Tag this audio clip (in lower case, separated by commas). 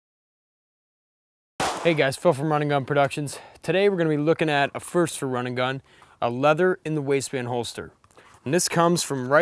outside, rural or natural, speech